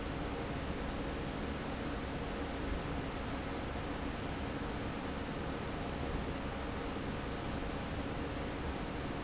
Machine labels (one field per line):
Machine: fan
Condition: normal